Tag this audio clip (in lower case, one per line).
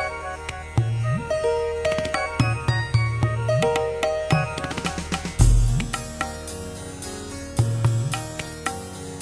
music